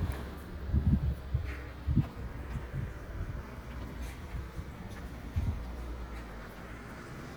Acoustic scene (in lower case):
residential area